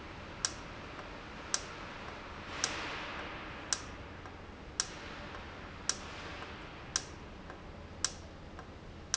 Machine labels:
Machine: valve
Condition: normal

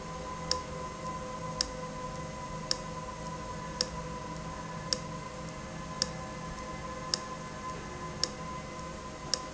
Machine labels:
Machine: valve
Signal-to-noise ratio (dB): -6 dB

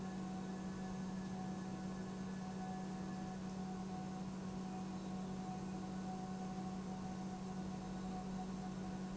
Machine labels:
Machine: pump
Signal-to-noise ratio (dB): 6 dB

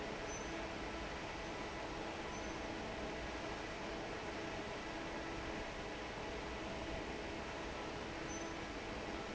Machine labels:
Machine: fan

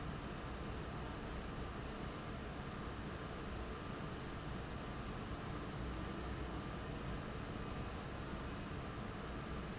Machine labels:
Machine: fan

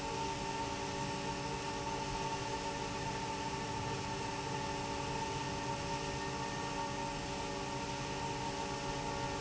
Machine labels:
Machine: fan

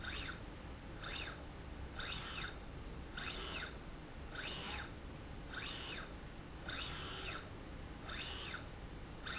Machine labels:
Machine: slide rail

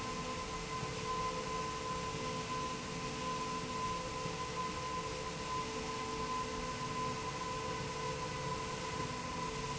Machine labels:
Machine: slide rail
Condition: normal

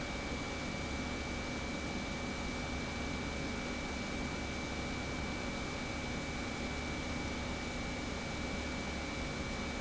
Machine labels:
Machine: pump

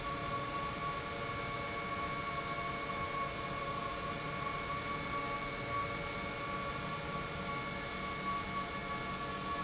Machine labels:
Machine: pump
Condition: normal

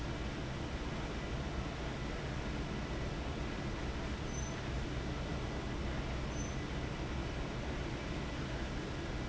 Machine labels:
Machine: fan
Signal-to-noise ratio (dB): -6 dB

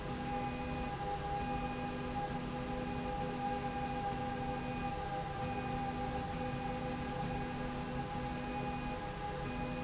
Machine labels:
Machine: slide rail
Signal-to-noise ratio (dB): -6 dB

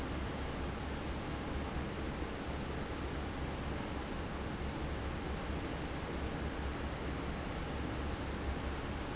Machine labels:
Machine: fan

